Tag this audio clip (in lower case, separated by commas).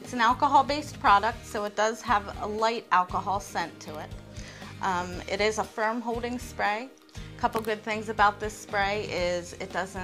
music, speech